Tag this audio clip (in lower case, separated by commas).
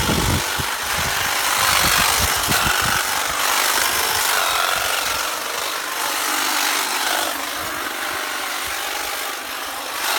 hedge trimmer running